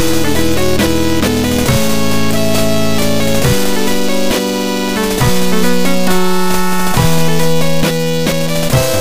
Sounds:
music

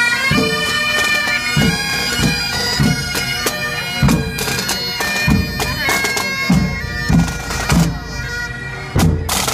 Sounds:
playing bagpipes

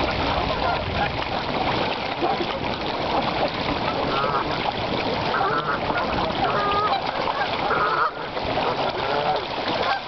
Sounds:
splatter
duck
splashing water
bird

